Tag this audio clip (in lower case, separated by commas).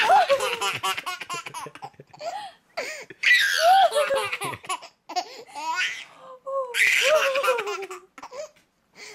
people belly laughing, laughter, belly laugh